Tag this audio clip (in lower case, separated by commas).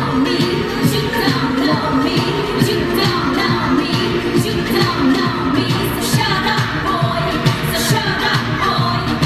tender music, dance music, music, soul music